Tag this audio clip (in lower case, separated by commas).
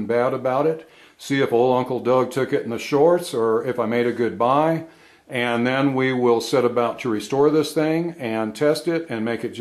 speech